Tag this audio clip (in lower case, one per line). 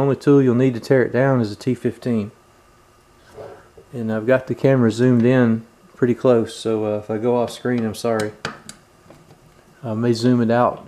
inside a small room
speech